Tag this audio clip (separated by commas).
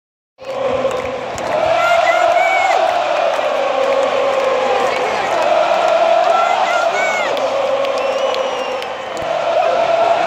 Speech